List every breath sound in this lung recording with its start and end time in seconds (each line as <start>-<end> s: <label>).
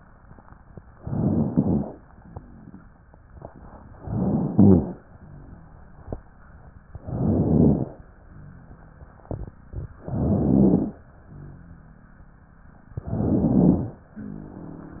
0.93-1.96 s: inhalation
0.93-1.96 s: crackles
4.00-5.03 s: inhalation
4.00-5.03 s: crackles
7.00-8.03 s: inhalation
7.00-8.03 s: crackles
10.04-11.06 s: inhalation
10.04-11.06 s: crackles
13.00-14.02 s: inhalation
13.00-14.02 s: crackles